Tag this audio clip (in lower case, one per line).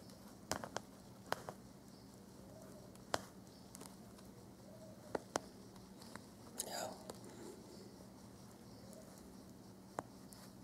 speech
insect
inside a small room